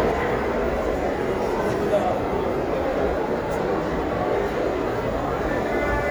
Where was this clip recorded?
in a restaurant